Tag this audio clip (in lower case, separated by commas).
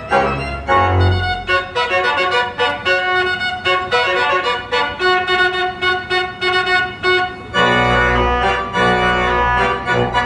hammond organ, organ